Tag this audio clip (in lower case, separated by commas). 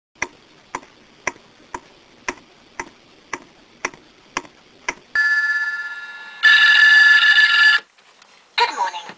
speech, clock